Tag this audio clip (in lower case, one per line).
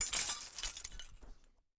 glass